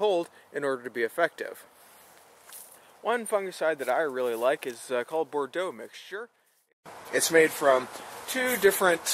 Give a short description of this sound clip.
Man speaking at different volumes